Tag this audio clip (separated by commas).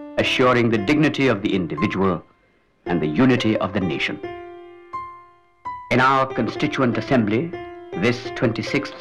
Music, monologue, Speech, man speaking